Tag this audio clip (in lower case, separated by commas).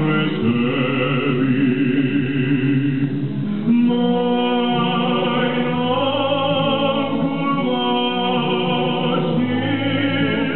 music, opera, a capella